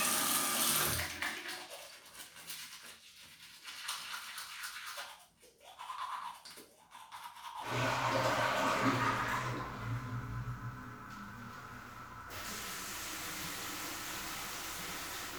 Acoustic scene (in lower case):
restroom